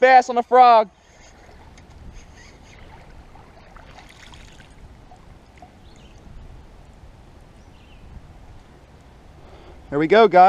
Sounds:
Speech

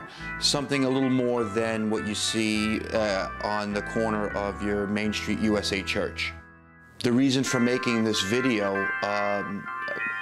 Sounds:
Speech, Music, Keyboard (musical), Musical instrument, Electronic organ, Piano

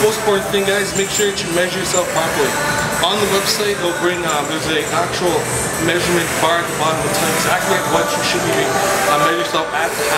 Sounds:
Music, Speech

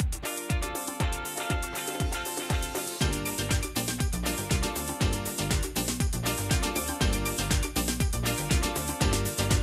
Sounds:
Music

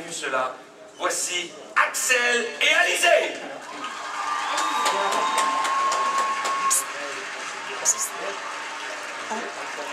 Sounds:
Speech

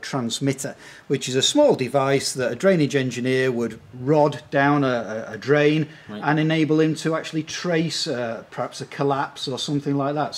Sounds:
Speech

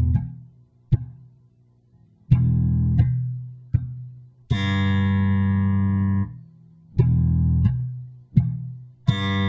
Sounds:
Bass guitar, Music

